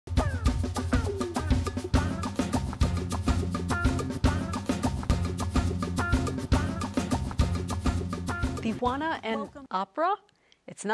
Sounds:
music, speech

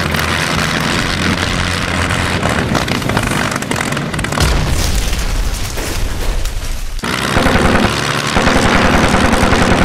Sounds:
boom, fixed-wing aircraft, sound effect, vehicle, aircraft

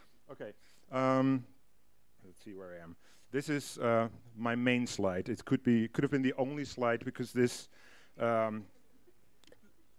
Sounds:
speech

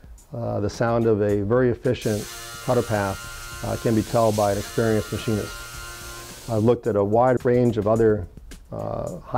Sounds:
speech, music

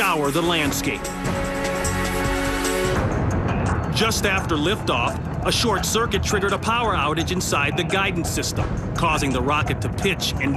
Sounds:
music, explosion, speech

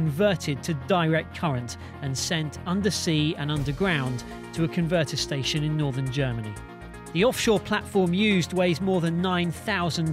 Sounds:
music, speech

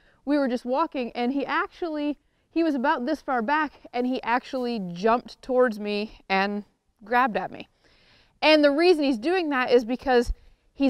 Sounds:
speech

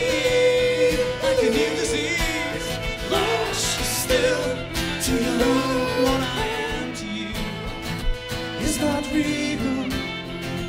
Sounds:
country, music, singing

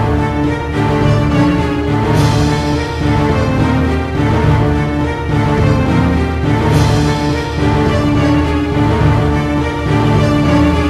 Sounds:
theme music, music

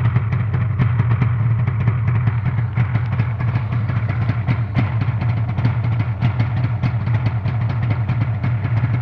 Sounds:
medium engine (mid frequency), engine

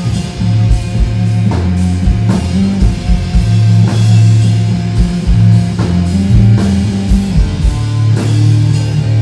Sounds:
music, rock music, heavy metal, drum kit

